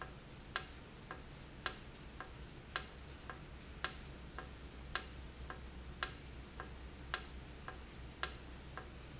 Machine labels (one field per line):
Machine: valve